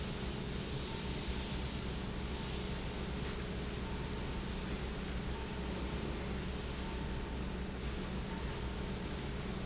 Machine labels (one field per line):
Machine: pump